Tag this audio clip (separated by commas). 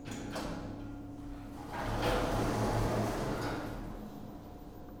Sliding door, home sounds, Door